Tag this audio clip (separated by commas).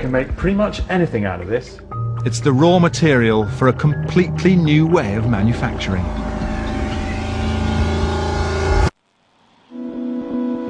Speech